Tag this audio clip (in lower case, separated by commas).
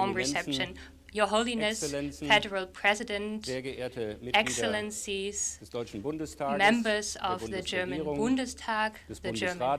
woman speaking, narration, male speech, speech